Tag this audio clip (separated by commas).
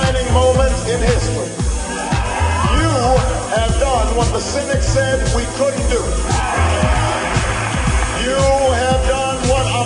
man speaking, Narration, Music, Speech